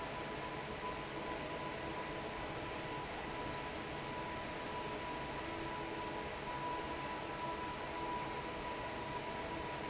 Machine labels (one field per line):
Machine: fan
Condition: normal